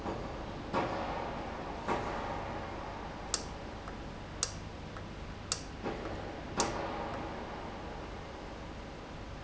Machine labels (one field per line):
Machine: valve